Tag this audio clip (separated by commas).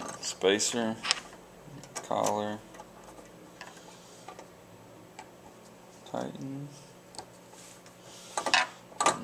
Speech